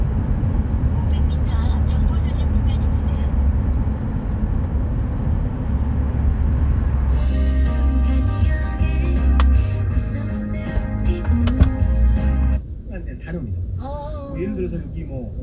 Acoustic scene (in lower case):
car